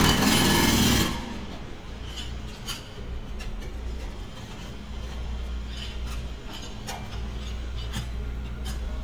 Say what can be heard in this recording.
jackhammer